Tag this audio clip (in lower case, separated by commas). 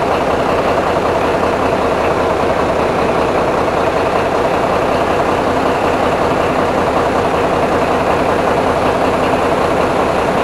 vehicle, truck